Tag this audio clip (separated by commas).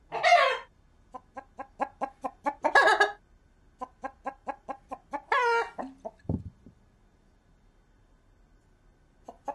Cluck, Chicken, Fowl, chicken clucking